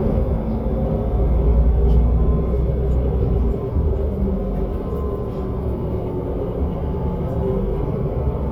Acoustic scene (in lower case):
bus